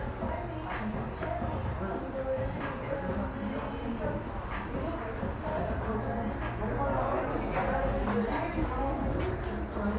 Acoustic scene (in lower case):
cafe